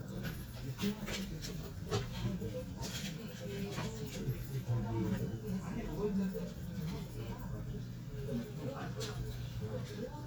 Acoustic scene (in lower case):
crowded indoor space